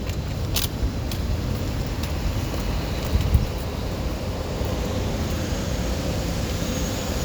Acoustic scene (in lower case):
residential area